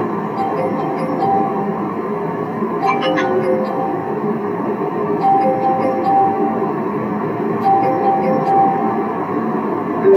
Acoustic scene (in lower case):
car